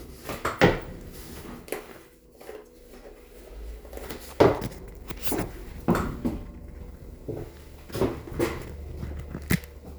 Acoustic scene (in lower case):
elevator